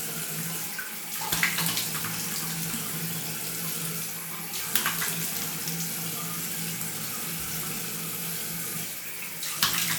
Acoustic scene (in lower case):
restroom